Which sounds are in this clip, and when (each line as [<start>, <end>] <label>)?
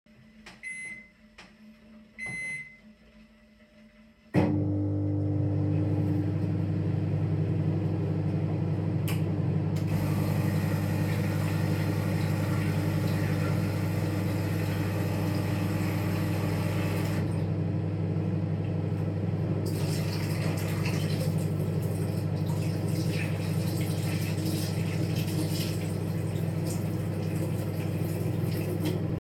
[4.24, 29.20] microwave
[8.97, 17.31] coffee machine
[19.75, 28.84] running water